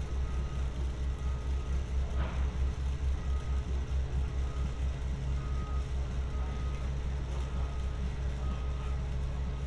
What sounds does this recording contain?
medium-sounding engine, reverse beeper